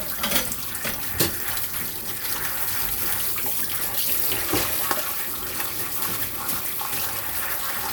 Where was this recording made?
in a kitchen